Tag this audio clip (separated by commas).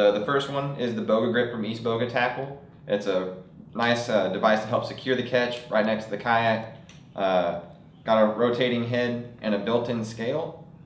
Speech